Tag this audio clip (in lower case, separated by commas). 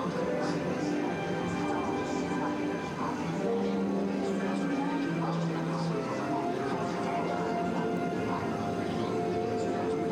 speech, music